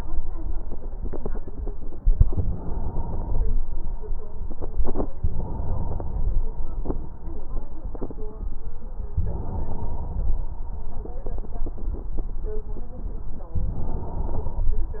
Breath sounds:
Inhalation: 2.27-3.39 s, 5.28-6.08 s, 9.18-10.24 s, 13.56-14.69 s

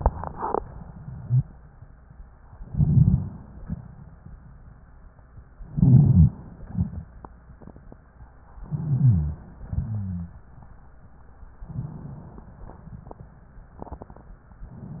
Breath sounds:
Inhalation: 2.60-3.61 s, 5.69-6.60 s, 8.65-9.56 s, 11.71-12.62 s
Exhalation: 3.61-4.12 s, 6.64-7.16 s, 9.62-10.38 s
Rhonchi: 9.62-10.38 s
Crackles: 2.60-3.32 s, 5.71-6.38 s, 6.64-7.16 s, 8.67-9.43 s

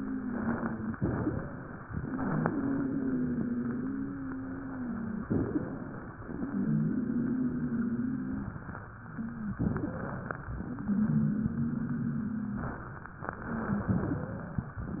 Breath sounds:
Inhalation: 0.95-1.86 s, 5.27-6.19 s, 9.60-10.51 s, 13.36-14.27 s
Exhalation: 0.00-0.91 s, 2.05-5.26 s, 6.43-8.62 s, 10.70-12.88 s
Wheeze: 0.00-0.91 s, 2.05-5.26 s, 5.27-6.19 s, 6.43-8.62 s, 9.60-10.51 s, 10.70-12.88 s, 13.36-14.27 s

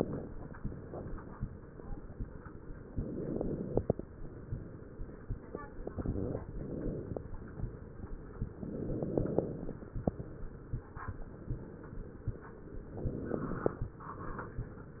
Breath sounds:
Inhalation: 2.88-4.00 s, 5.98-7.17 s, 8.58-9.70 s, 12.85-13.91 s
Crackles: 2.88-4.00 s, 5.98-7.17 s, 8.58-9.70 s, 12.85-13.91 s

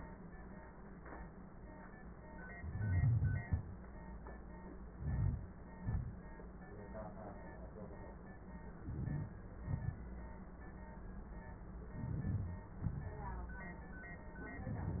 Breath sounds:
Inhalation: 4.92-5.55 s, 8.80-9.30 s, 11.86-12.68 s
Exhalation: 5.76-6.26 s, 9.56-10.00 s, 12.71-13.71 s
Crackles: 4.92-5.55 s, 8.80-9.30 s, 11.86-12.68 s

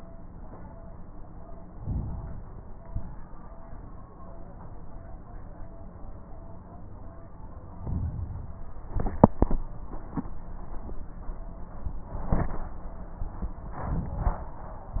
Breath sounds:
Inhalation: 1.65-2.54 s, 7.71-8.72 s, 13.74-14.76 s
Exhalation: 2.79-3.30 s, 8.85-9.29 s
Crackles: 1.65-2.54 s, 2.79-3.30 s, 7.71-8.72 s, 8.85-9.29 s, 13.74-14.76 s

